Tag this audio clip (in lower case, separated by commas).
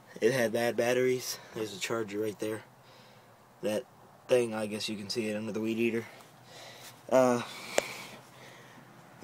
speech